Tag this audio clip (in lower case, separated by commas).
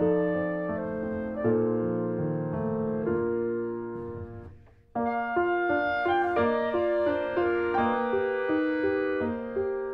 music